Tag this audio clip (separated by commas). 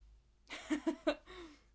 Human voice, Laughter